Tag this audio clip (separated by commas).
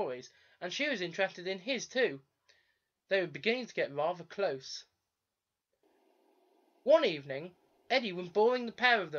Speech